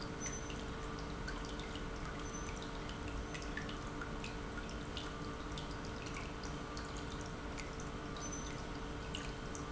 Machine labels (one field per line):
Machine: pump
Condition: normal